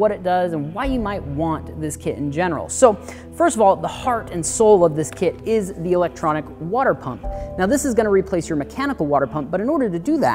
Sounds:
Speech, Music

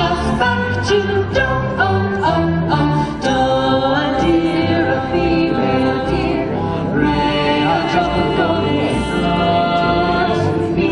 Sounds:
A capella

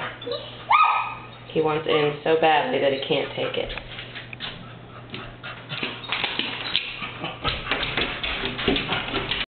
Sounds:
Animal, Speech, pets

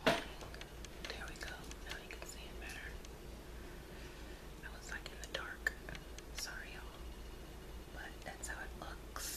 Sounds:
Whispering, people whispering, inside a small room

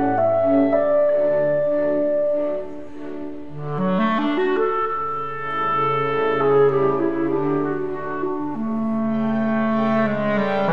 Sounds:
playing clarinet

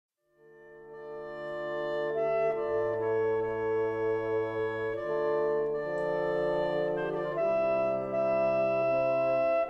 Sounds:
Brass instrument, Trombone

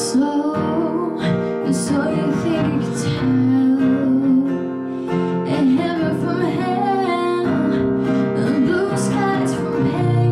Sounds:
Music, Female singing

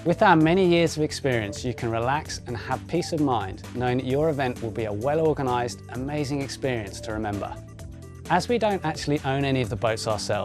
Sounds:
Music, Speech

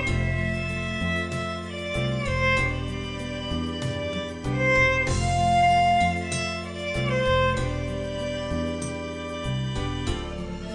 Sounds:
Bowed string instrument, Music, Musical instrument, fiddle

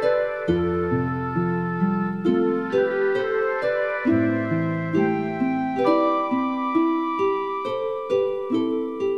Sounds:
Music

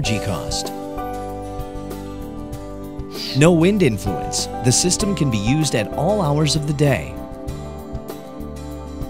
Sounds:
Music, Speech

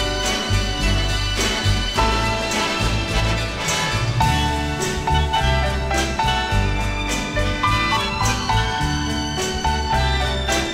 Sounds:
Music

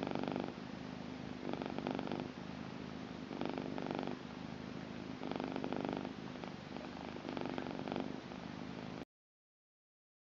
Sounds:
cat purring

